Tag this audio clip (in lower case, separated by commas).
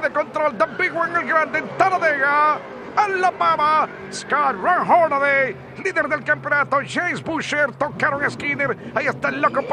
speech, vehicle